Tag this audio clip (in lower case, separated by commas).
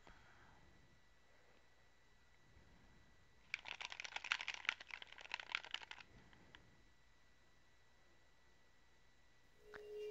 silence